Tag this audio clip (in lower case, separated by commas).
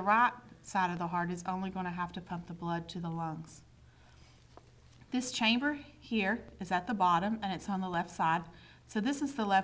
speech